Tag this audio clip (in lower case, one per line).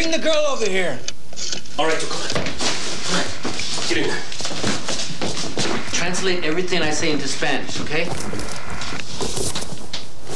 speech
inside a small room